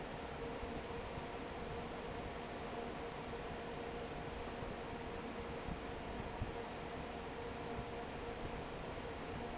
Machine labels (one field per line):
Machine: fan